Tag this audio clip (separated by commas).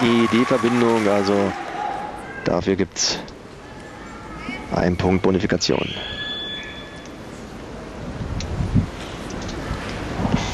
Speech, Rain on surface